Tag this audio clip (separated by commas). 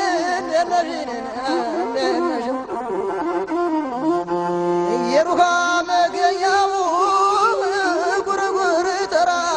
Music, Music of Africa